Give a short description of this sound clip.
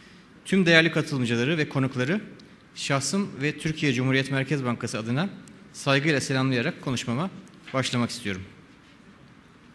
A man speaking